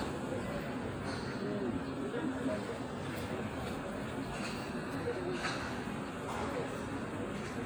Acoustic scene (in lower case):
park